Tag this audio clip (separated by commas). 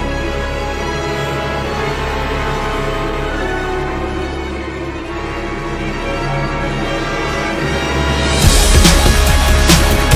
Music